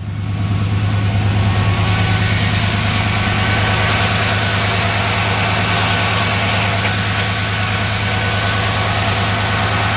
An idle vehicle engine running followed by metal clacking